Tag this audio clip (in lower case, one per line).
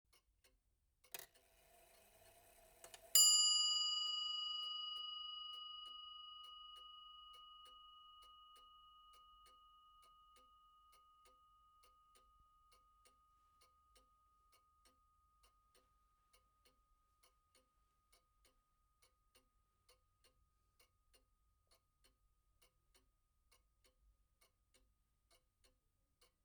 mechanisms
clock